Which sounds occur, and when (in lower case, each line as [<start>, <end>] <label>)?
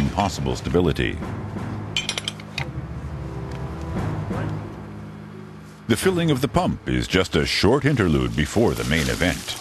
[0.00, 0.31] generic impact sounds
[0.00, 1.12] male speech
[0.00, 6.44] music
[1.91, 2.41] generic impact sounds
[2.52, 2.70] generic impact sounds
[3.42, 3.60] generic impact sounds
[4.21, 4.66] male speech
[5.83, 9.51] male speech
[7.27, 9.60] gush